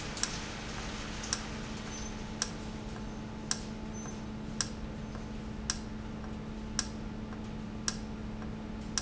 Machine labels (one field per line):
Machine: valve